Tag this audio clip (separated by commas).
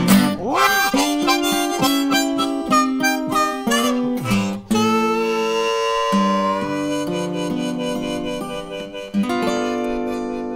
playing harmonica